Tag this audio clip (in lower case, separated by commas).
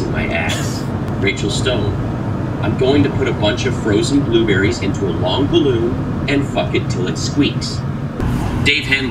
speech, radio